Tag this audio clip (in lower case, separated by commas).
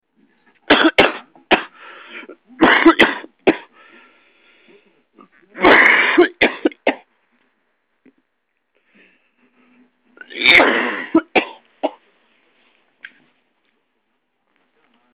respiratory sounds, cough